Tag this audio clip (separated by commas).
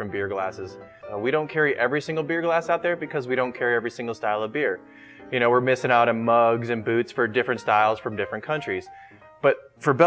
Speech, Music